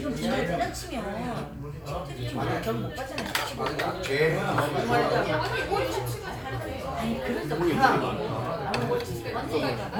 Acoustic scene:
crowded indoor space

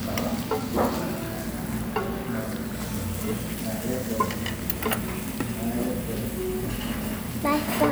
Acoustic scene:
restaurant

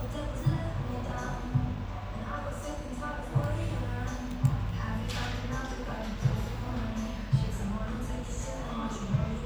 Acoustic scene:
cafe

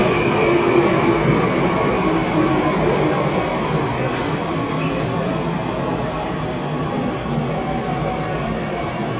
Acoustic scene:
subway station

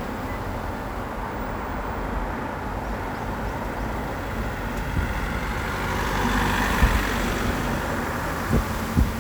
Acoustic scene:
street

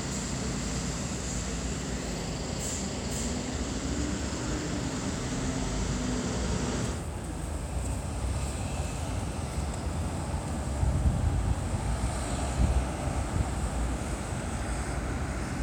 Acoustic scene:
street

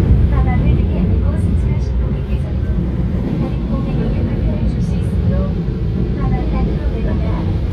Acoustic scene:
subway train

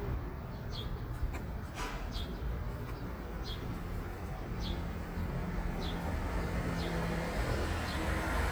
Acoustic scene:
residential area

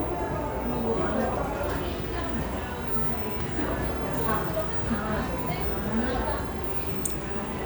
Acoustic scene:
cafe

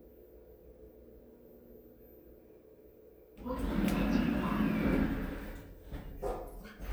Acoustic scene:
elevator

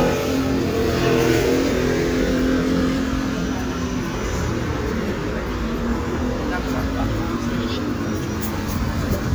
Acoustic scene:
residential area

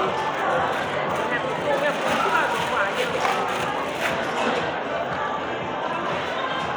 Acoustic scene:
cafe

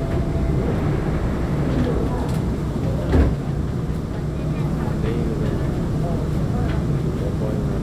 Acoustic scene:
subway train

